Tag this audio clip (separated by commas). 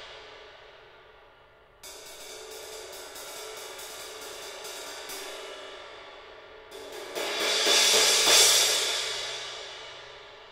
Music